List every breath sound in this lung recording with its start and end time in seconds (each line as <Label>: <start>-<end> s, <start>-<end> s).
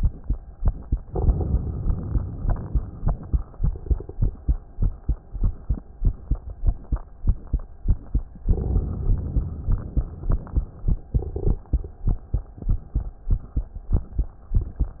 Inhalation: 1.01-3.30 s, 8.44-10.64 s